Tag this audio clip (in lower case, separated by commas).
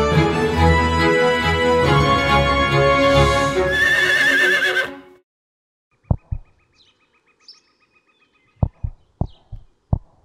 horse neighing